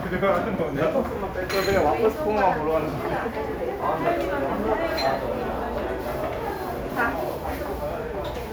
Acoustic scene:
crowded indoor space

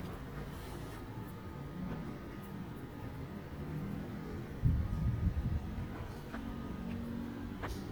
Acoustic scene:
residential area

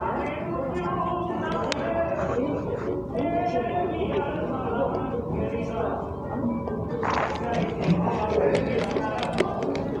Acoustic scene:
cafe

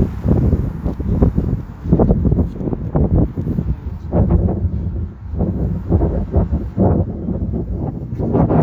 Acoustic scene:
street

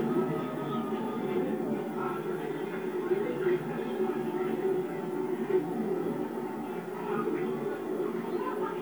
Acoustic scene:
park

